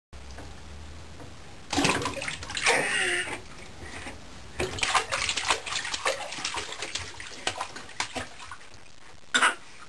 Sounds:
Bathtub (filling or washing)

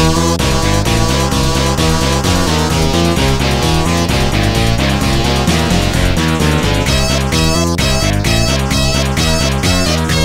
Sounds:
Video game music, Music

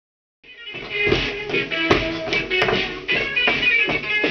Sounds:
Music, Pop music

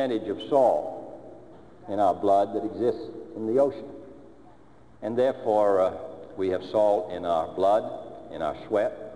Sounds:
man speaking, Speech, Narration

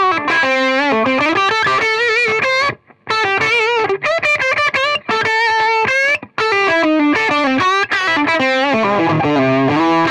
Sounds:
Musical instrument, Music, Guitar, Plucked string instrument

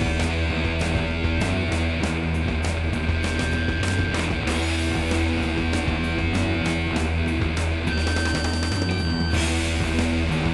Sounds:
Music

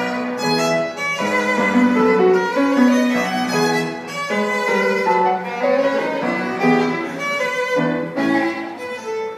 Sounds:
Musical instrument, fiddle, Music

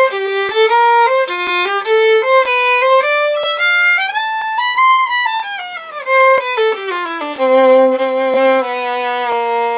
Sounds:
Musical instrument, fiddle, Music

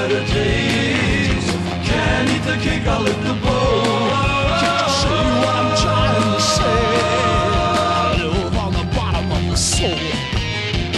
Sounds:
Music

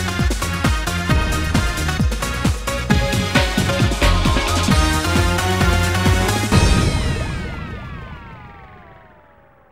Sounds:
Exciting music, Music

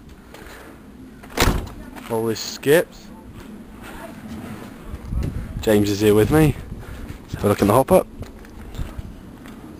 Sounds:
Speech

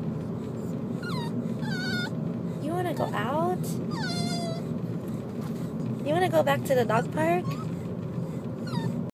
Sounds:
Dog, Speech, Animal, Whimper (dog), Yip, pets

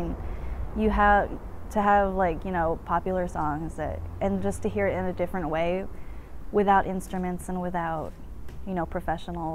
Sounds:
Speech

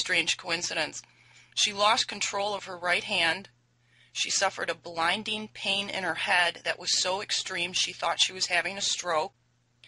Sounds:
Speech

